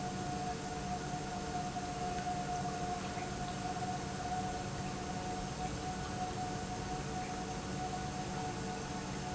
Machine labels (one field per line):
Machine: pump